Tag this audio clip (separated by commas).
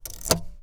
Motor vehicle (road), Vehicle, Car